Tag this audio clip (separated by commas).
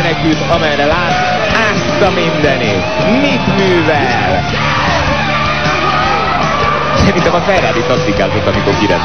Music, auto racing, Speech